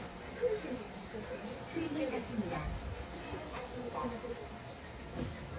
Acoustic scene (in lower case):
subway train